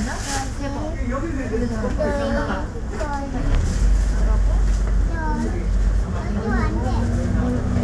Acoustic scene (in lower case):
bus